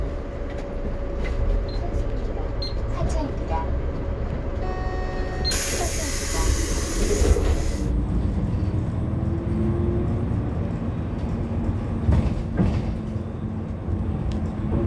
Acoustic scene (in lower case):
bus